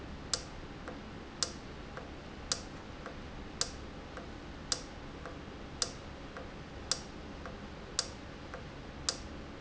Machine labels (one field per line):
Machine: valve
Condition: normal